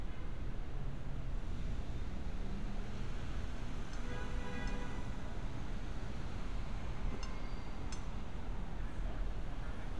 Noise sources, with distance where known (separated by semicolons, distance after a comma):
engine of unclear size, far; car horn, far